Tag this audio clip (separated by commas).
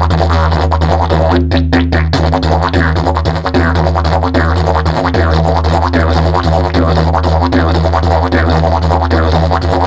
playing didgeridoo